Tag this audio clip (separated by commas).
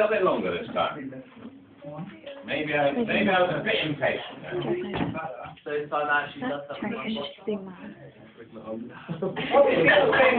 Speech